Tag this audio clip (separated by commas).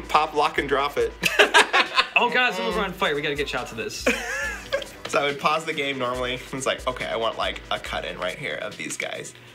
Music, Speech